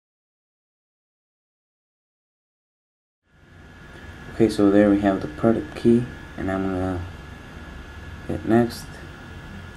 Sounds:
Speech

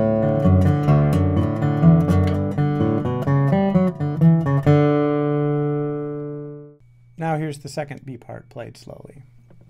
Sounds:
Speech, Guitar, Music, Acoustic guitar, inside a small room, Plucked string instrument, Musical instrument

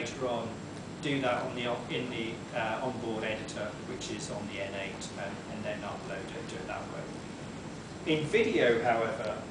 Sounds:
Speech

